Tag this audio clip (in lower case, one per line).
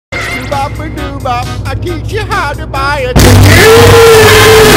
music